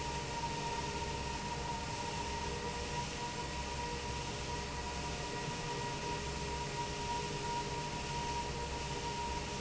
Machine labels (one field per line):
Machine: fan